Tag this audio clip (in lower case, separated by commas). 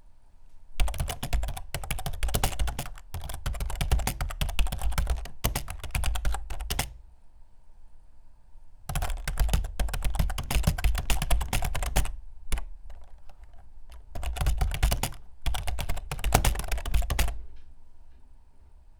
domestic sounds, computer keyboard, typing